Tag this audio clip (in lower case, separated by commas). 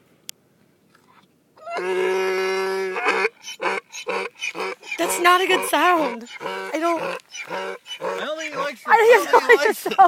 ass braying